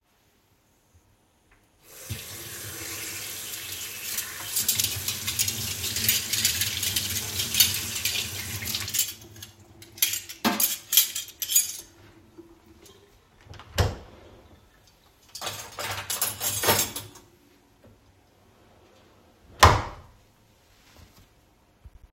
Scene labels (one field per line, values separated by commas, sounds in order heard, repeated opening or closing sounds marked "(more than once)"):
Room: kitchen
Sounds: running water, cutlery and dishes